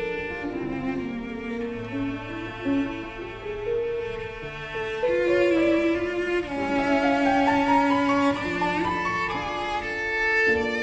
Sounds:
violin, bowed string instrument

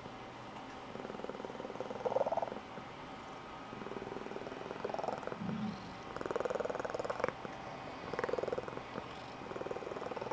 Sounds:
cat purring

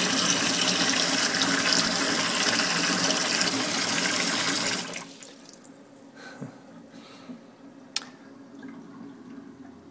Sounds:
faucet, sink (filling or washing), water

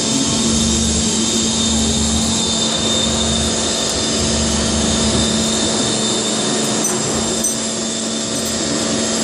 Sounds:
drill

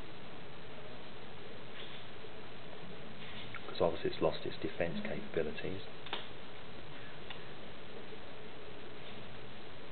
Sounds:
inside a small room, speech

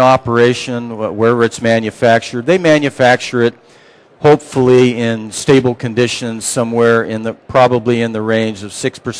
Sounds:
speech

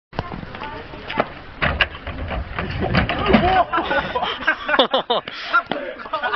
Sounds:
walk, speech

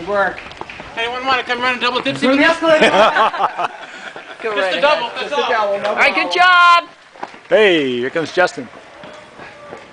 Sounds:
run, outside, urban or man-made, speech

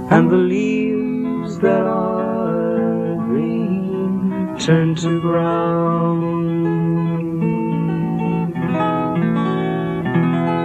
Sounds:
music, inside a large room or hall, singing

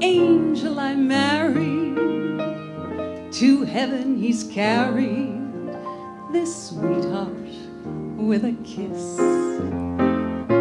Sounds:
music, female singing

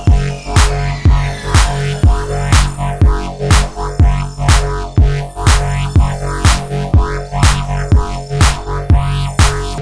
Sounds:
music

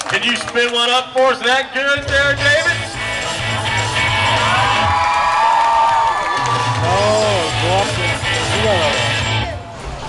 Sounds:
speech, music

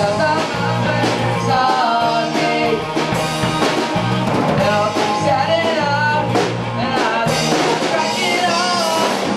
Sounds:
music, rock and roll

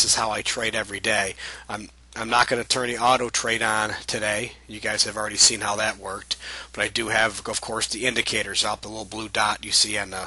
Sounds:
speech

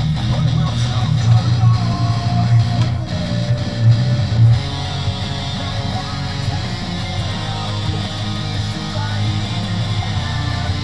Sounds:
music, musical instrument, electric guitar, plucked string instrument, guitar

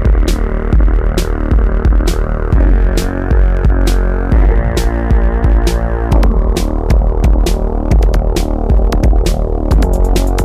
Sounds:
electronic music, music, techno

